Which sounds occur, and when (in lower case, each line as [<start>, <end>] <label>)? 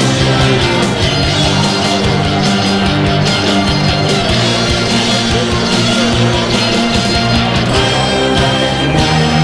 [0.00, 9.43] music